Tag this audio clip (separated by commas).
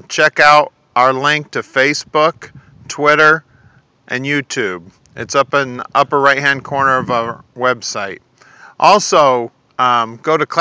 Speech